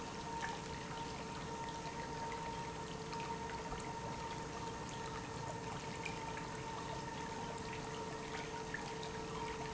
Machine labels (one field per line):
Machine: pump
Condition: normal